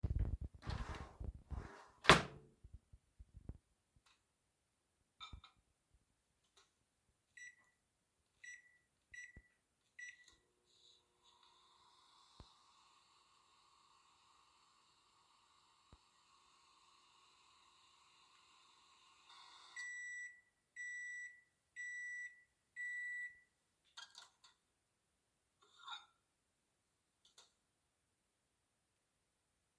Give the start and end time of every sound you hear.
0.6s-2.5s: wardrobe or drawer
5.1s-5.7s: cutlery and dishes
7.3s-24.6s: microwave
25.5s-26.1s: cutlery and dishes

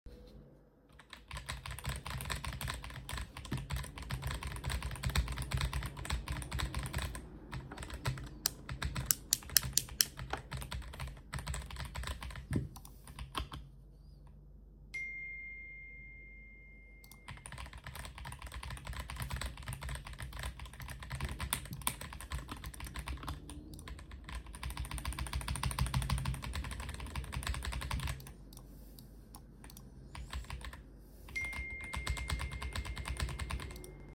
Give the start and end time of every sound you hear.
1.0s-13.9s: keyboard typing
8.6s-10.2s: light switch
14.9s-17.4s: phone ringing
17.4s-34.2s: keyboard typing
31.5s-34.2s: phone ringing

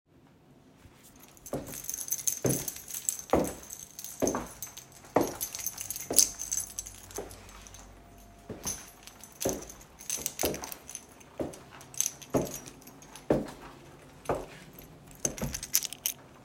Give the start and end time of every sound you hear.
1.4s-7.9s: keys
1.4s-7.8s: footsteps
8.4s-16.2s: footsteps
8.5s-16.2s: keys

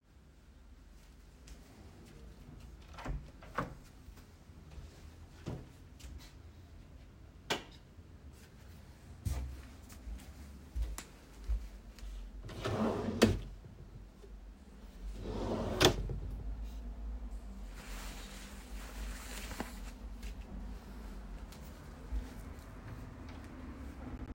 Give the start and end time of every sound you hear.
1.0s-6.7s: footsteps
2.8s-4.1s: door
4.6s-5.7s: door
7.4s-7.8s: light switch
8.2s-12.4s: footsteps
12.4s-13.7s: wardrobe or drawer
15.0s-16.8s: wardrobe or drawer
21.6s-24.3s: footsteps

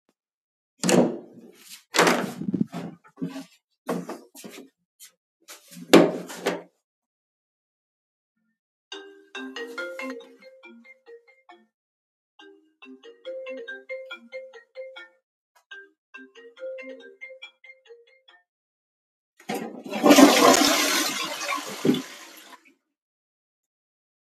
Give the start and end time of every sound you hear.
0.5s-3.6s: door
3.0s-5.9s: footsteps
5.7s-7.3s: door
8.9s-19.2s: phone ringing
19.2s-23.4s: toilet flushing

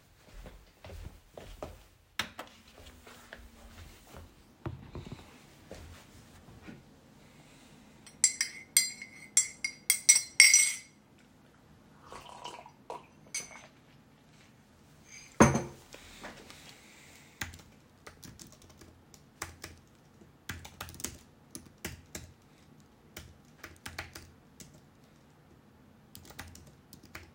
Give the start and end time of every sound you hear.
0.0s-1.9s: footsteps
5.6s-6.1s: footsteps
8.2s-10.9s: cutlery and dishes
13.3s-13.9s: cutlery and dishes
15.4s-16.1s: cutlery and dishes
17.4s-24.7s: keyboard typing
26.1s-27.3s: keyboard typing

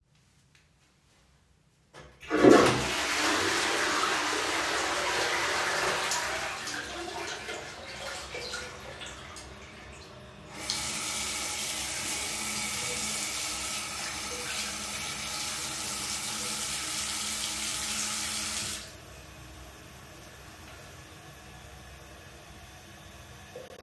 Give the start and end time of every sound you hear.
1.9s-23.8s: toilet flushing
10.5s-19.0s: running water

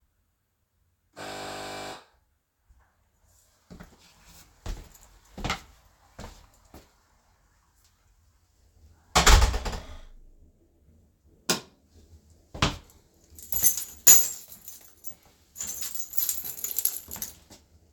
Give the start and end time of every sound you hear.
1.1s-2.1s: bell ringing
4.5s-7.0s: footsteps
9.1s-10.5s: door
11.3s-11.8s: light switch
12.4s-13.1s: footsteps
13.3s-17.6s: keys

